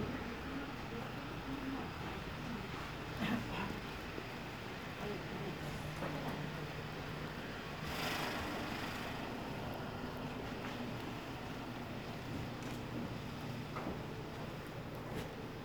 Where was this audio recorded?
in a residential area